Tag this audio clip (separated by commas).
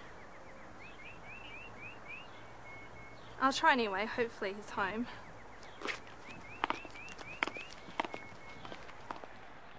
Speech, Tap